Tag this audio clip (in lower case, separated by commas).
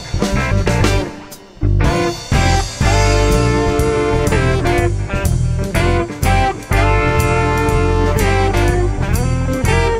music